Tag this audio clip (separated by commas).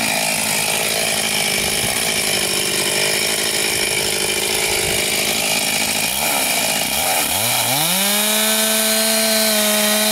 chainsawing trees